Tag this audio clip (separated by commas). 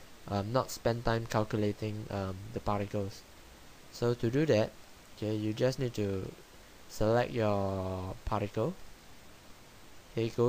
Speech